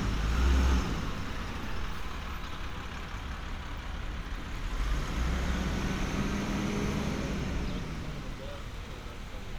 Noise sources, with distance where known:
engine of unclear size, near

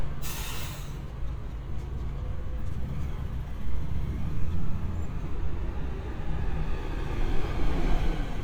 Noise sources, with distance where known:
medium-sounding engine, near; engine of unclear size, near

